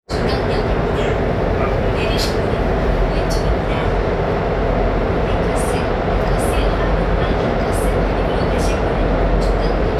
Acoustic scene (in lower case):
subway train